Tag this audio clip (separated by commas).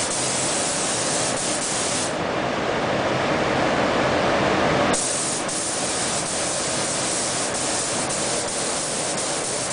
Spray